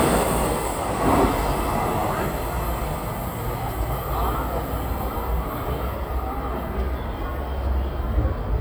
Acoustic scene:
subway station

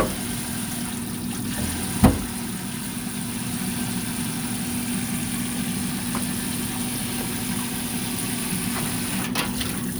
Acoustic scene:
kitchen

